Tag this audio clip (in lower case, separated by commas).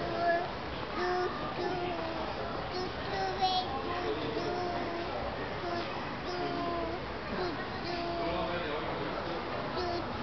speech